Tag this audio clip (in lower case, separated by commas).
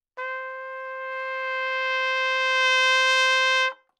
trumpet, music, brass instrument, musical instrument